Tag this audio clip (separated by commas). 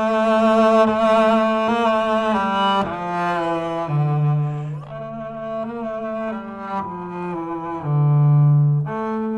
playing double bass